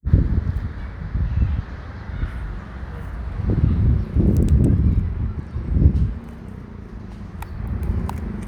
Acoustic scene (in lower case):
residential area